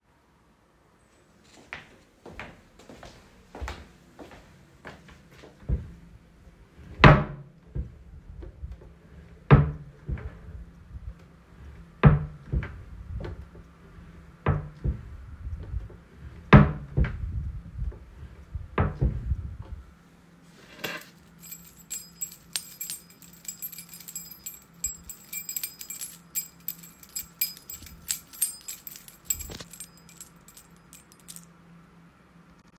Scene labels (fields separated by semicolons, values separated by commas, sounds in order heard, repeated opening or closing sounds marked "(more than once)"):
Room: bedroom; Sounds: footsteps, wardrobe or drawer (more than once), keys